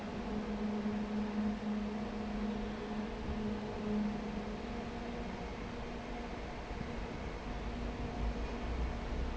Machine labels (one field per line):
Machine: fan